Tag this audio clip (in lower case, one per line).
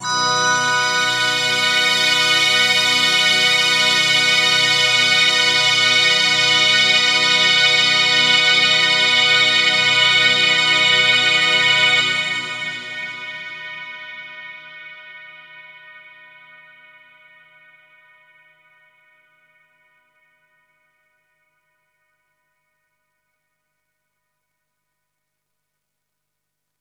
musical instrument
music